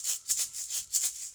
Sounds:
rattle (instrument), percussion, musical instrument, music

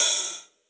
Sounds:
hi-hat, cymbal, musical instrument, music, percussion

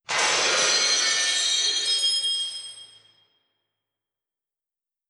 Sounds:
shatter, glass

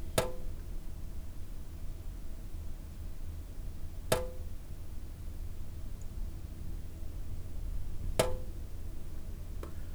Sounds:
domestic sounds, sink (filling or washing)

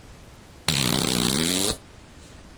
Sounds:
fart

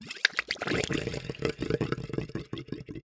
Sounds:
water, gurgling

